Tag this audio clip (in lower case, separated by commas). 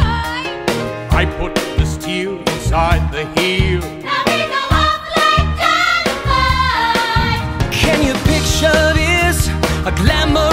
music